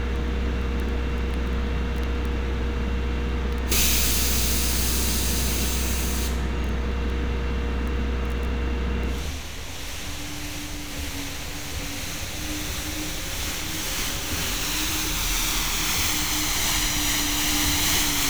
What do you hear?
large-sounding engine